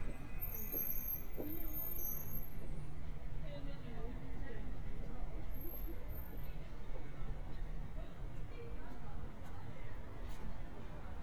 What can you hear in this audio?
engine of unclear size, person or small group talking